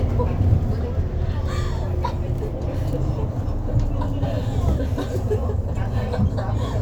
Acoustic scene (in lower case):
bus